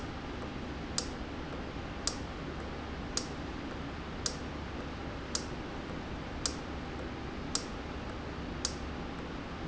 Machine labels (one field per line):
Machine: valve